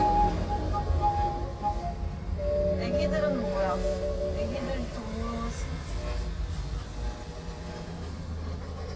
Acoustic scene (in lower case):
car